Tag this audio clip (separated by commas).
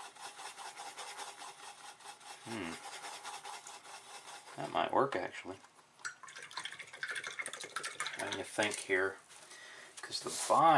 Water tap